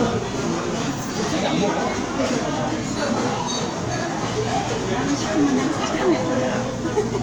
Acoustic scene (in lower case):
restaurant